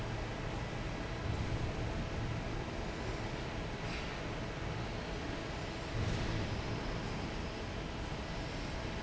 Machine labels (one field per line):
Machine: fan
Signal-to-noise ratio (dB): -6 dB